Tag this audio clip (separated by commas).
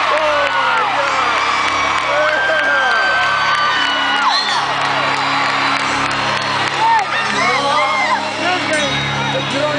Music, Speech